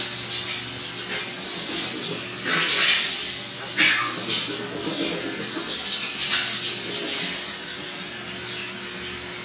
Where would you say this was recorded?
in a restroom